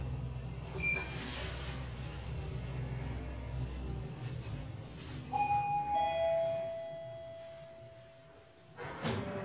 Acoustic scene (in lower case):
elevator